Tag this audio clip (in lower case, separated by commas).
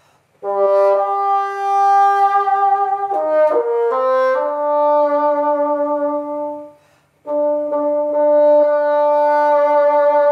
playing bassoon